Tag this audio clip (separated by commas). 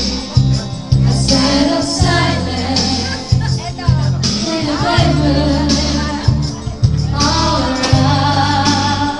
Female singing, Music